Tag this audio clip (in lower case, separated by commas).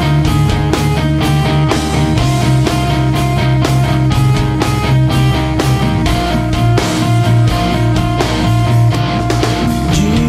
rock music, music